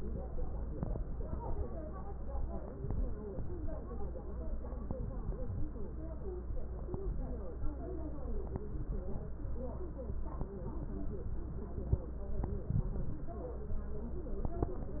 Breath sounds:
Wheeze: 5.41-5.81 s

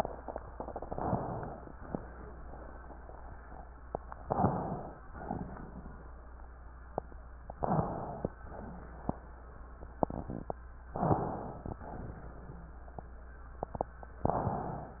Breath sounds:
Inhalation: 0.70-1.69 s, 4.20-4.94 s, 7.57-8.29 s, 10.94-11.81 s, 14.26-15.00 s
Exhalation: 5.12-6.12 s, 8.47-9.20 s, 11.80-12.67 s
Wheeze: 4.24-4.60 s, 7.55-7.91 s, 10.94-11.30 s

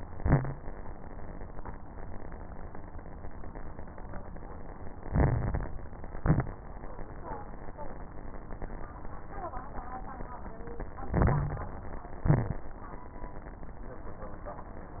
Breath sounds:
Inhalation: 5.02-5.74 s, 11.08-11.80 s
Exhalation: 0.00-0.57 s, 6.12-6.63 s, 12.20-12.71 s
Crackles: 0.00-0.57 s, 5.02-5.74 s, 6.12-6.63 s, 11.08-11.80 s, 12.20-12.71 s

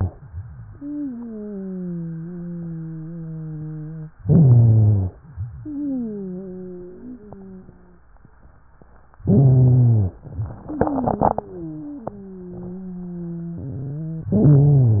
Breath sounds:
Inhalation: 4.25-5.16 s, 9.24-10.15 s, 14.32-15.00 s
Wheeze: 0.67-4.14 s, 4.25-5.16 s, 5.58-8.06 s, 10.62-14.34 s
Rhonchi: 4.25-5.16 s, 9.24-10.15 s, 14.32-15.00 s

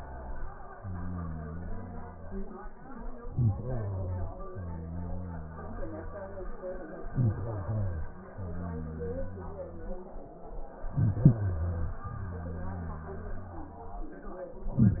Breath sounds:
Inhalation: 3.31-4.51 s, 7.03-8.20 s, 10.88-12.03 s
Exhalation: 4.52-6.54 s, 8.18-10.30 s, 12.03-14.11 s

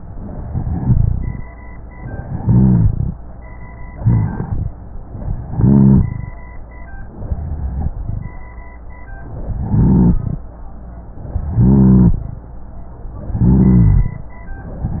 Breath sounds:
Inhalation: 0.08-1.43 s, 1.96-3.13 s, 3.95-4.71 s, 5.33-6.28 s, 7.17-8.37 s, 9.45-10.40 s, 11.35-12.30 s, 13.30-14.25 s
Rhonchi: 0.32-1.43 s, 2.16-3.13 s, 3.95-4.71 s, 5.33-6.28 s, 7.17-8.37 s, 9.45-10.40 s, 11.35-12.30 s, 13.30-14.25 s

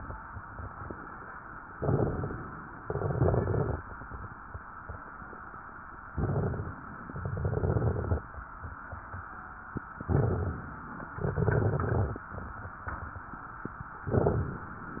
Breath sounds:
Inhalation: 1.75-2.71 s, 6.09-7.06 s, 10.02-11.10 s, 14.10-15.00 s
Exhalation: 2.81-3.78 s, 7.17-8.26 s, 11.21-12.30 s
Crackles: 1.75-2.71 s, 2.81-3.78 s, 6.09-7.06 s, 7.17-8.26 s, 10.02-11.10 s, 11.21-12.30 s, 14.10-15.00 s

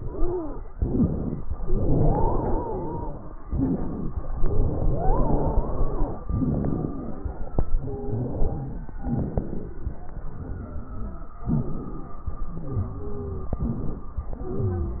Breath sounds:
Inhalation: 0.71-1.47 s, 3.43-4.28 s, 6.32-7.57 s, 8.98-9.98 s, 11.48-12.29 s, 13.54-14.35 s
Exhalation: 0.00-0.67 s, 1.62-3.38 s, 4.30-6.22 s, 7.65-8.92 s, 10.06-11.32 s, 12.36-13.52 s, 14.41-15.00 s
Wheeze: 0.00-0.67 s, 0.71-1.47 s, 1.62-3.38 s, 3.43-4.28 s, 4.30-6.22 s, 6.32-7.57 s, 7.65-8.92 s, 8.98-9.98 s, 10.06-11.32 s, 11.48-12.29 s, 12.36-13.52 s, 13.54-14.35 s, 14.41-15.00 s

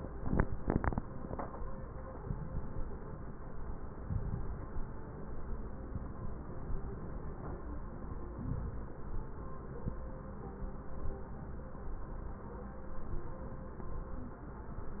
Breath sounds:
Inhalation: 2.22-3.00 s, 4.05-4.82 s, 5.91-6.69 s, 8.38-9.16 s

